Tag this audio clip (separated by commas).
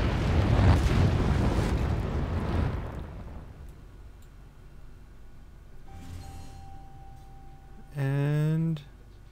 Eruption, Speech, Music